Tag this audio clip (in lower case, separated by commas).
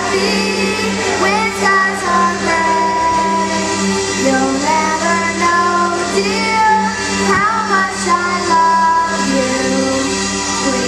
music, female singing, child singing